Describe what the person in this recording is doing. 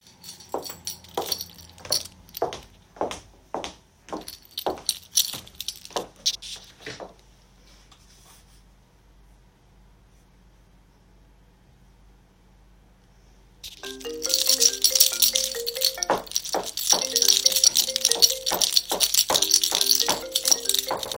I walked while holding my keychain, and after a short pause the phone started ringing.